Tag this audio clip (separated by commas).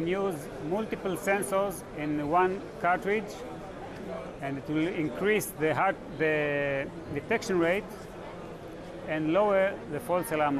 Speech